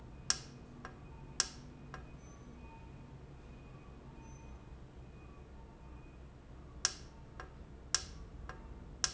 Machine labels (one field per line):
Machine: valve